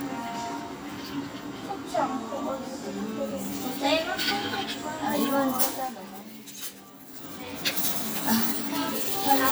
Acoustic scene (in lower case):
cafe